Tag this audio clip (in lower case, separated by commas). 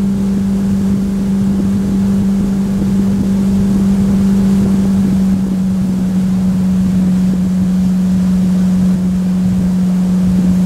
speedboat, water vehicle